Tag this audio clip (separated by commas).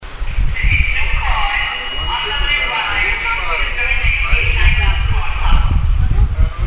Wind